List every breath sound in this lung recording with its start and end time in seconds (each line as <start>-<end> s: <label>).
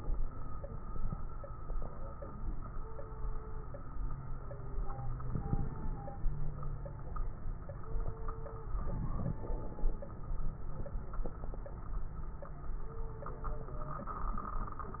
5.28-6.20 s: inhalation
5.28-6.20 s: crackles
8.80-10.00 s: inhalation
8.80-10.00 s: crackles